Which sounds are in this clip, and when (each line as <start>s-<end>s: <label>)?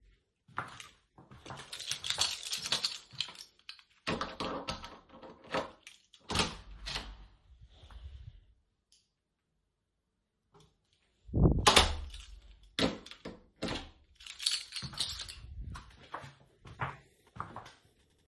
0.4s-3.9s: footsteps
1.4s-4.1s: keys
4.0s-7.6s: door
11.3s-14.5s: door
14.1s-15.9s: keys
15.5s-18.3s: footsteps